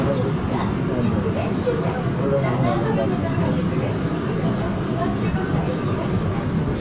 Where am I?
on a subway train